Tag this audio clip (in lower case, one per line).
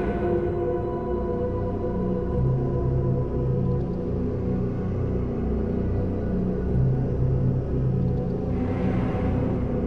scary music
music